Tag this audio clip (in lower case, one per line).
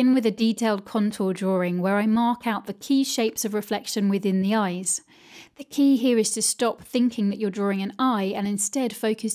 speech